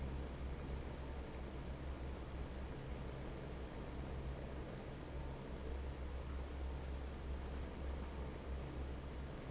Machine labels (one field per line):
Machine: fan